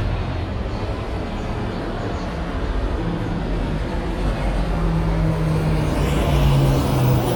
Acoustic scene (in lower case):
street